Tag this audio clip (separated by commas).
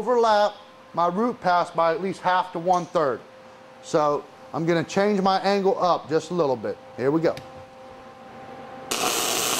Speech, inside a small room, Tools